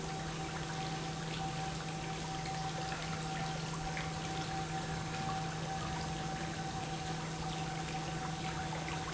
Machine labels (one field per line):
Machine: pump